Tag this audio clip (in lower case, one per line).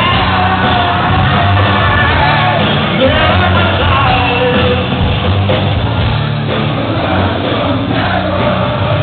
music
middle eastern music
new-age music